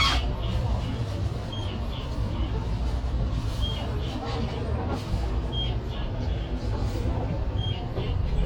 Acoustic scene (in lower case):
bus